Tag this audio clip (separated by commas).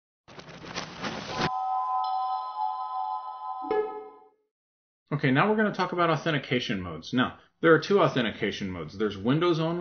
Music, Speech